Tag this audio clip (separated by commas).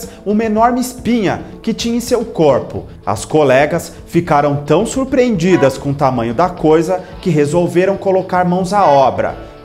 striking pool